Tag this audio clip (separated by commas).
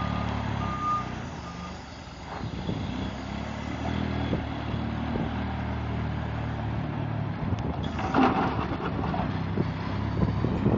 Truck, Vehicle, outside, rural or natural